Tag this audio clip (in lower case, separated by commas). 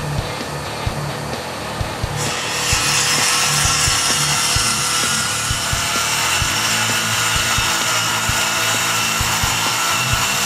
wood, sawing, rub